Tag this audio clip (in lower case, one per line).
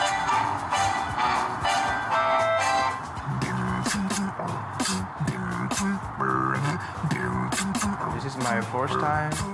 beat boxing